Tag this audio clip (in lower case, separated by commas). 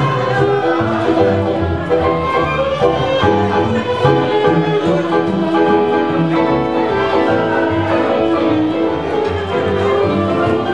musical instrument, piano, orchestra, wedding music, music, fiddle